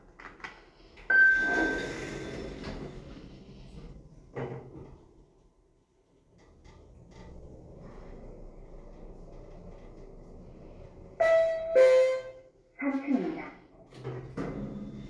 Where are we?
in an elevator